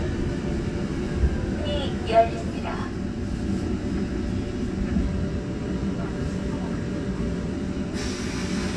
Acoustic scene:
subway train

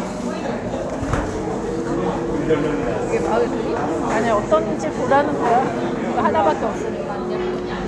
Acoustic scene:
crowded indoor space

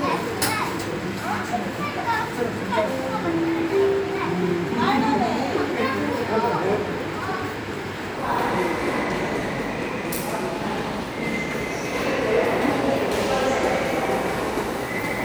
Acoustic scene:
subway station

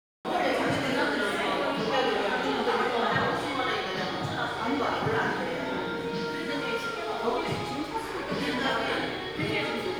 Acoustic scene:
crowded indoor space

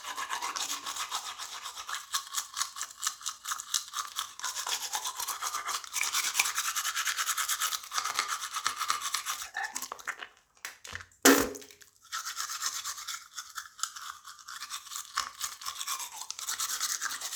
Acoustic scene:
restroom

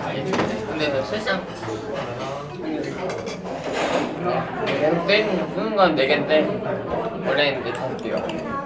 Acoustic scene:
crowded indoor space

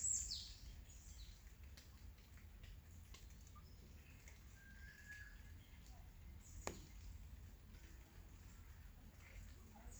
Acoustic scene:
park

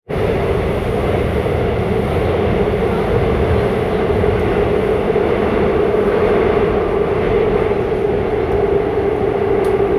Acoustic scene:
subway train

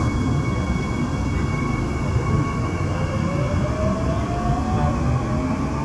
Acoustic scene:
subway train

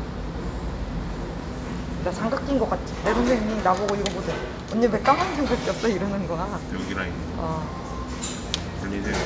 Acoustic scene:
cafe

